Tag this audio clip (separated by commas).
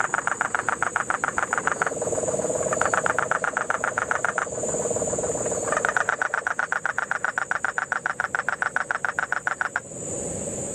frog croaking